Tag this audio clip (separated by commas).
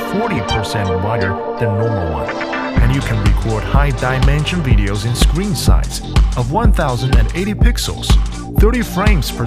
Music, Speech